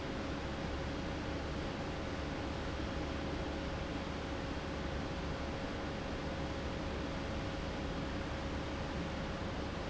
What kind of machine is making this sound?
fan